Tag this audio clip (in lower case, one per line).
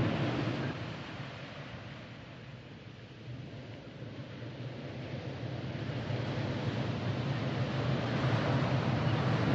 white noise